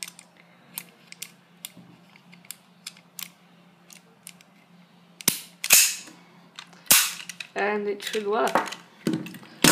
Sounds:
Gunshot

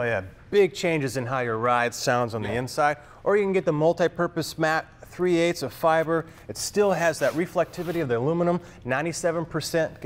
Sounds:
Speech

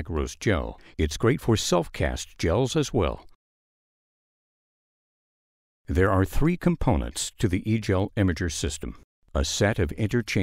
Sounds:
Speech

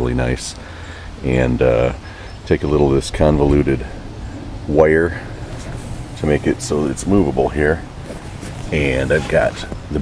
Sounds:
Speech

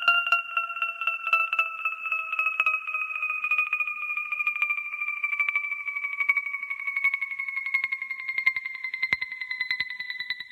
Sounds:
Music

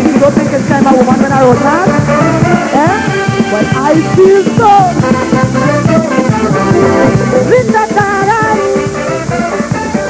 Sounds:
Music, Female singing

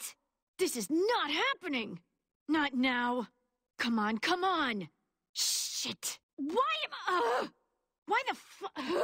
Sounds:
Speech

